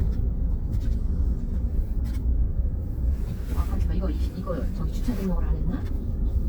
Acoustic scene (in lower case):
car